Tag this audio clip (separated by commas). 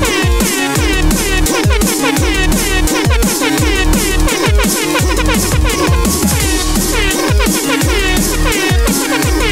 Music